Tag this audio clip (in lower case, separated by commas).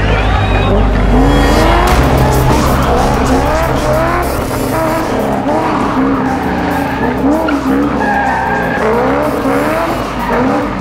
car, motor vehicle (road), vehicle, music